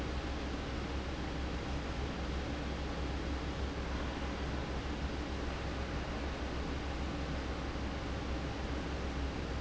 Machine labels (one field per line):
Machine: fan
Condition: abnormal